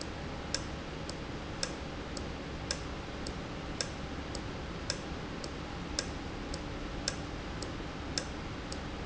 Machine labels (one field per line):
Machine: valve